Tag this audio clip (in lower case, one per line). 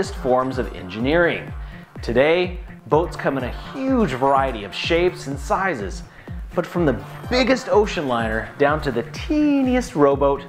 music
speech